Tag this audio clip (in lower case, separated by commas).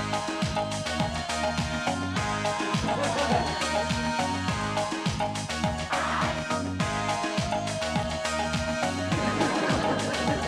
music